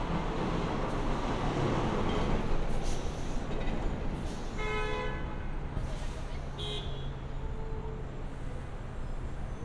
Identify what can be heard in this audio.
engine of unclear size, car horn